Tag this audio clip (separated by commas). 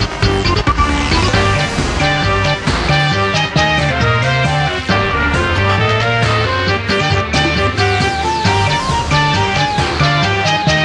Music